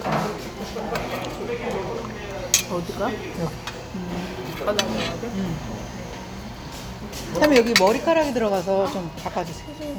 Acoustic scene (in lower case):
restaurant